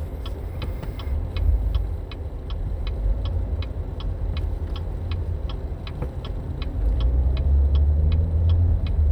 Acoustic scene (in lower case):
car